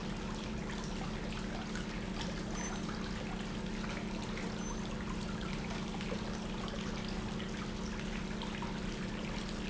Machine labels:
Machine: pump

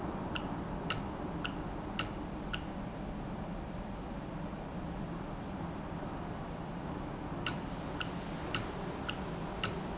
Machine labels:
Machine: valve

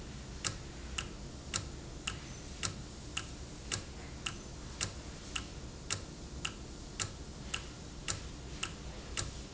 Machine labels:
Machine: valve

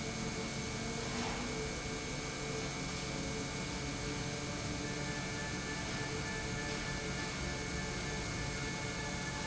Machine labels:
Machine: pump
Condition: normal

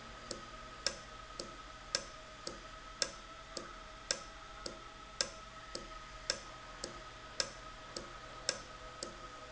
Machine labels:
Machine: valve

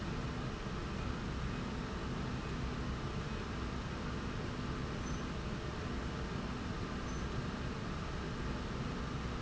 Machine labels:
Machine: slide rail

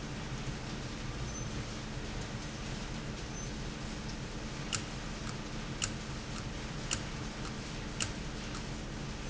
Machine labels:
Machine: valve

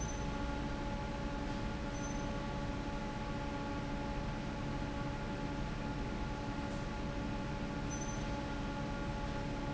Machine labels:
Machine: fan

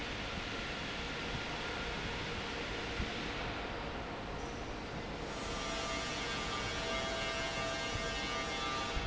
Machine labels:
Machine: fan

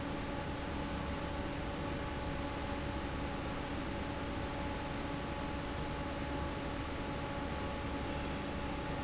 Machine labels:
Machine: fan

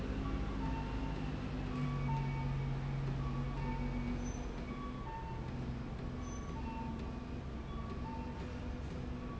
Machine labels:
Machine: slide rail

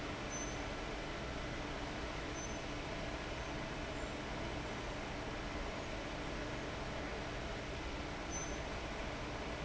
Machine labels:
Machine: fan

